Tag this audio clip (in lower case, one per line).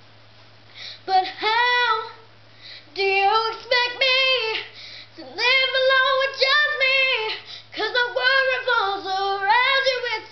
female singing